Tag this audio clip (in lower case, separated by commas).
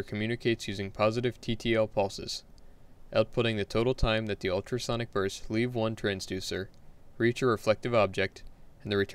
speech